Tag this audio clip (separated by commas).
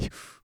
Respiratory sounds, Breathing